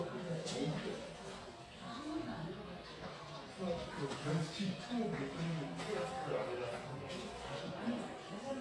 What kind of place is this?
crowded indoor space